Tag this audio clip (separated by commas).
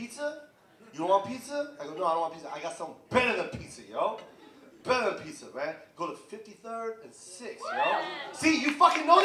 Speech